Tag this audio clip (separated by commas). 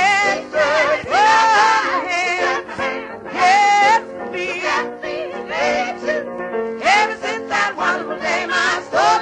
Choir, Female singing, Music